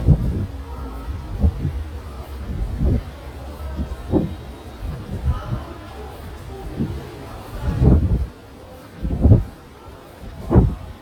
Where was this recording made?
in a subway station